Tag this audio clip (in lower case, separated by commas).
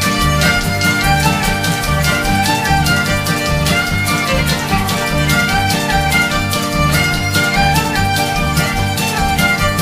music